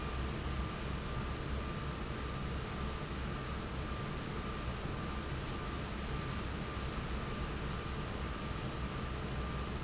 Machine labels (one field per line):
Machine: fan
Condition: normal